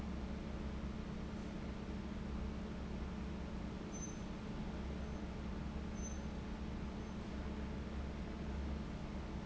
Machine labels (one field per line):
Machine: fan